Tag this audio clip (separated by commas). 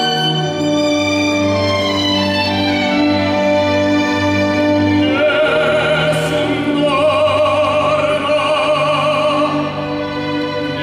Opera, Music